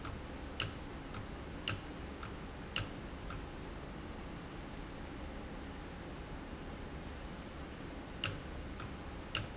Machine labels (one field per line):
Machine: valve